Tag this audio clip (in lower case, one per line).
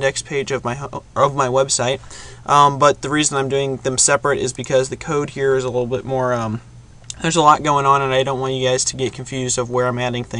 speech